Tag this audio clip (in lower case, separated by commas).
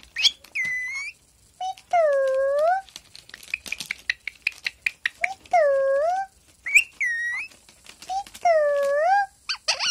parrot talking